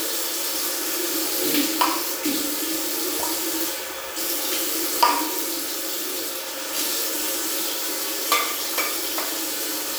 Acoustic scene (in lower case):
restroom